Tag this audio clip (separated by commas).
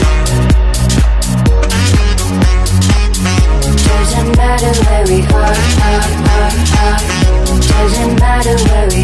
House music, Music, Singing